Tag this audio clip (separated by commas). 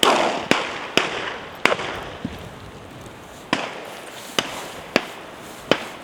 Explosion, Gunshot